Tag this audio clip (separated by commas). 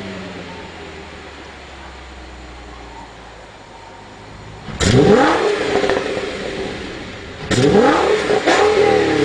Speech, Clatter